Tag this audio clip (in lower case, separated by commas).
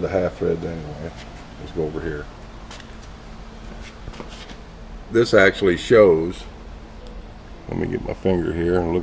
speech